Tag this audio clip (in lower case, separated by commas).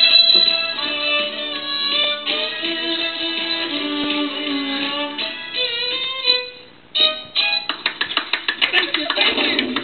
fiddle, music, speech, musical instrument